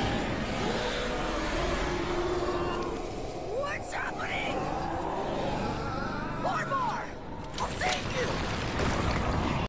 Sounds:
Speech

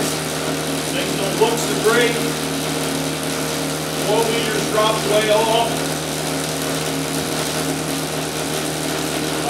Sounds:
Speech

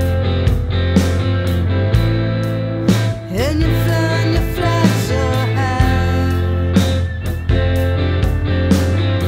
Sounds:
Music

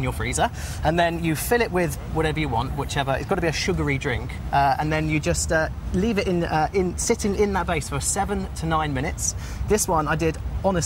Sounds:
Speech

